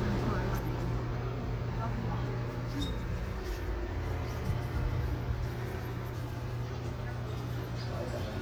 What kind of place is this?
residential area